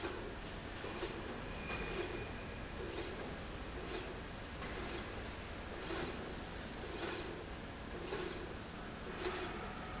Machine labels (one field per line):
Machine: slide rail